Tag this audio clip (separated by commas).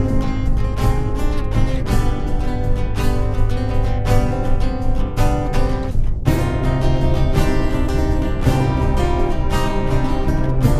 Music, Lullaby